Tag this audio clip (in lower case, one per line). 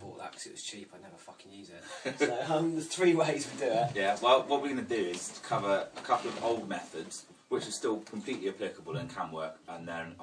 speech